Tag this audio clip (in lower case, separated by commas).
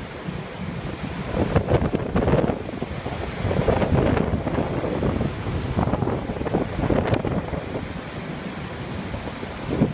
sea waves